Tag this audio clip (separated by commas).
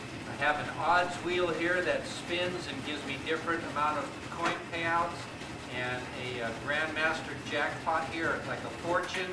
Clip-clop, Speech